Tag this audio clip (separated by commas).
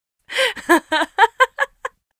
chortle, Human voice, Laughter